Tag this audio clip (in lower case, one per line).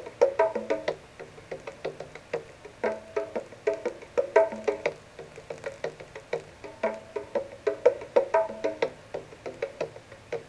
music